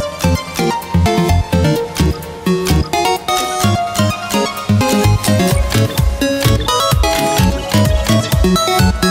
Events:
[0.00, 9.10] music

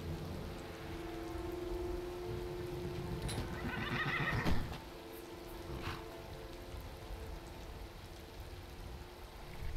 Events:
[0.00, 9.75] music
[0.00, 9.75] video game sound
[0.00, 9.75] wind
[3.22, 3.39] generic impact sounds
[3.56, 4.43] neigh
[4.38, 4.49] generic impact sounds
[4.67, 4.76] generic impact sounds
[5.78, 5.99] snort (horse)

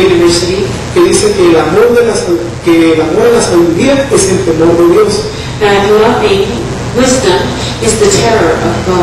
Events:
[0.00, 9.02] background noise
[0.00, 9.02] man speaking

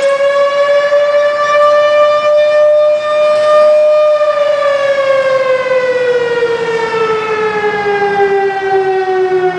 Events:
[0.00, 9.55] fire truck (siren)

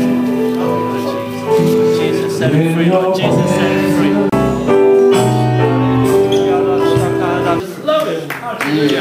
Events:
[0.01, 9.00] music
[0.01, 9.00] speech babble
[1.47, 2.14] male speech
[2.25, 4.12] male singing
[6.24, 7.57] male speech
[7.83, 8.29] male speech

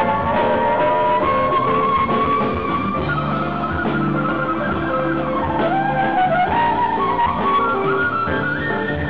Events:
[0.00, 9.05] music

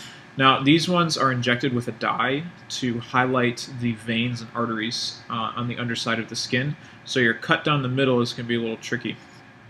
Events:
[0.00, 0.26] breathing
[0.00, 9.65] mechanisms
[0.35, 2.44] man speaking
[1.97, 2.03] tick
[2.52, 2.60] tick
[2.65, 6.76] man speaking
[6.85, 6.99] breathing
[7.01, 9.16] man speaking
[9.16, 9.44] breathing

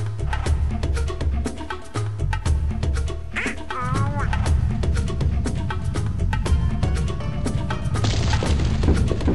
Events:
[0.00, 9.34] music
[3.32, 3.55] duck
[3.64, 4.28] speech synthesizer
[3.68, 7.93] rumble
[7.93, 8.60] explosion
[8.77, 9.26] generic impact sounds

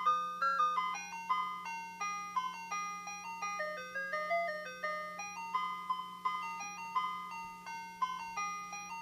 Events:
[0.00, 9.01] mechanisms
[0.00, 9.01] music
[6.54, 6.66] tick
[7.39, 7.50] tick

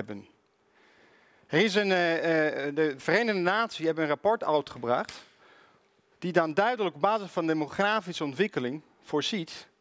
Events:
[0.00, 0.23] male speech
[0.00, 9.80] background noise
[0.69, 1.47] breathing
[1.45, 5.17] male speech
[5.33, 5.83] breathing
[6.17, 8.83] male speech
[9.01, 9.68] male speech

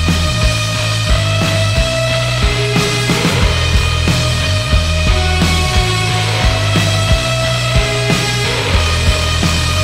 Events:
[0.01, 9.83] music

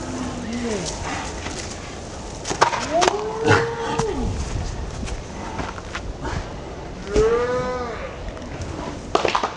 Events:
[0.00, 9.55] wind
[0.38, 0.73] human voice
[0.47, 0.56] generic impact sounds
[0.72, 0.92] generic impact sounds
[1.03, 1.21] generic impact sounds
[1.35, 1.66] generic impact sounds
[2.41, 2.83] generic impact sounds
[2.72, 4.22] human voice
[3.01, 3.16] generic impact sounds
[3.45, 3.61] generic impact sounds
[3.94, 4.05] generic impact sounds
[4.26, 4.68] surface contact
[4.91, 5.15] generic impact sounds
[5.47, 5.76] generic impact sounds
[5.88, 5.96] generic impact sounds
[6.23, 6.42] generic impact sounds
[7.04, 7.99] human voice
[7.08, 7.22] generic impact sounds
[8.14, 8.59] tick
[9.11, 9.45] clapping

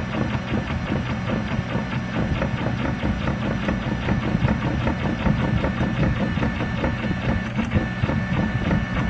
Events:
[0.00, 9.05] printer

